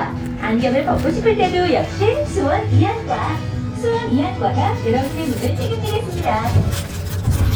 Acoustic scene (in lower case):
bus